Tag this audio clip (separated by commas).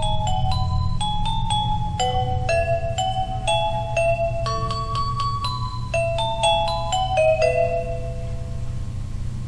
Music, Christian music, Christmas music